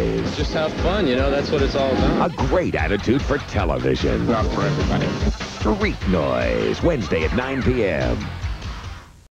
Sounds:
Speech, Music

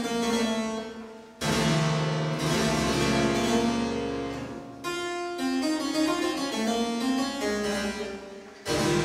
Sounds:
Harpsichord, Music

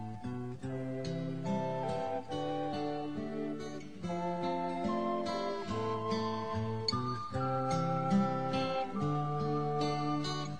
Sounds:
Music

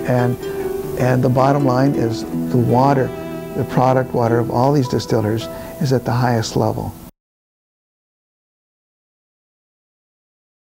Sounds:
Speech, Music

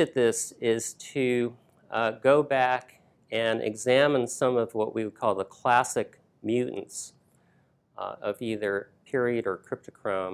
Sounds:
Speech

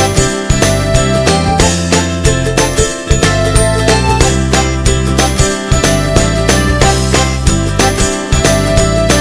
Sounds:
Music

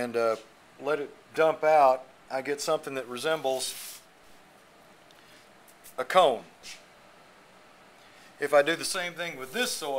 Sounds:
Speech

